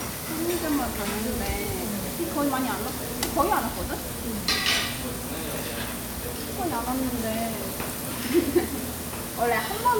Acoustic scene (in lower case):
restaurant